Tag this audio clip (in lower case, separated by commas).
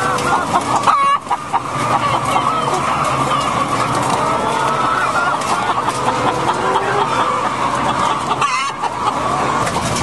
animal, rooster